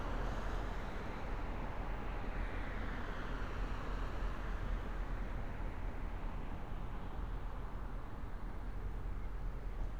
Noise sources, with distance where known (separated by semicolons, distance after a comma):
engine of unclear size, far